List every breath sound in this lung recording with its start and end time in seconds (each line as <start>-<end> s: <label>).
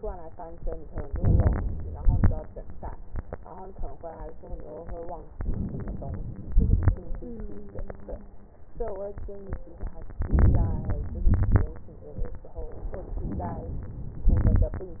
0.92-1.61 s: inhalation
1.61-2.35 s: crackles
1.66-2.36 s: exhalation
5.31-6.52 s: inhalation
6.51-7.04 s: crackles
6.52-7.08 s: exhalation
10.22-11.29 s: inhalation
11.26-11.90 s: crackles
11.29-11.89 s: exhalation
13.14-14.30 s: inhalation
14.30-15.00 s: exhalation
14.30-15.00 s: crackles